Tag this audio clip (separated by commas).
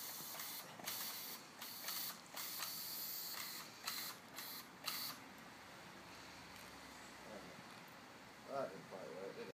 Speech, Spray